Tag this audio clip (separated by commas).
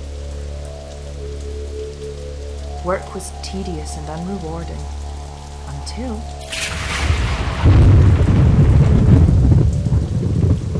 Speech